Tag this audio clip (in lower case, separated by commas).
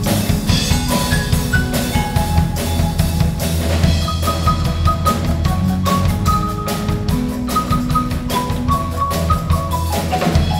percussion, music